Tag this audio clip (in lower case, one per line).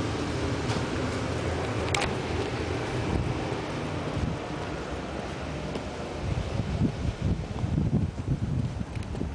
footsteps